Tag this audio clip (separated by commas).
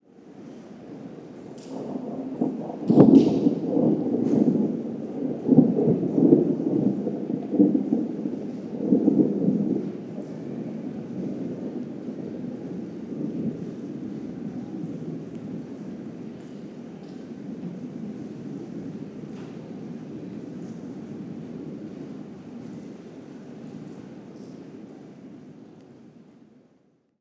Thunderstorm, Thunder, Rain, Water